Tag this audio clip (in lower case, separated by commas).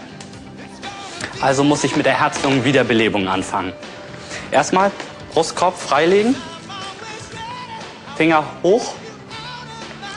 speech, music